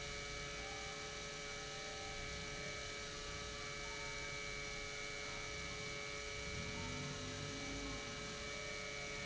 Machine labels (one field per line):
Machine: pump